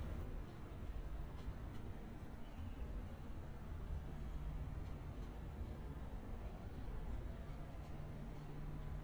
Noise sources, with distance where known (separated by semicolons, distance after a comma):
background noise